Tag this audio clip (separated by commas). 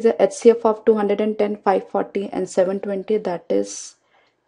Speech